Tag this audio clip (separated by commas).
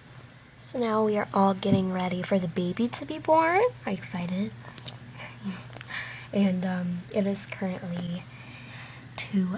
inside a small room, Speech